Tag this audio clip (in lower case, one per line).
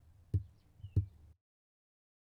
bird song
wild animals
animal
bird
walk